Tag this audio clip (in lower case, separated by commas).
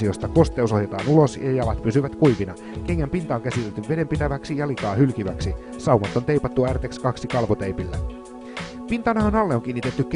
speech, music